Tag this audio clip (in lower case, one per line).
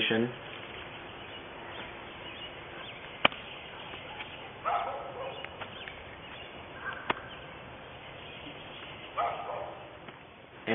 speech
outside, rural or natural